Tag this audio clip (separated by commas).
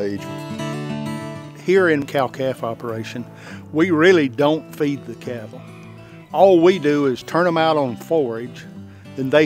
Music, Speech